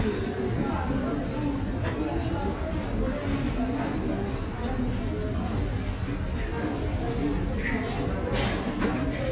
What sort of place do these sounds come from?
subway station